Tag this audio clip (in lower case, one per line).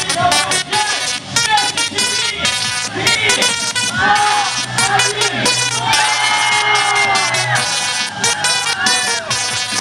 music
speech